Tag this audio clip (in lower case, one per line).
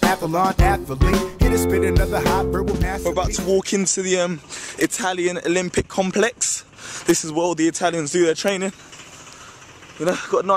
speech
man speaking
music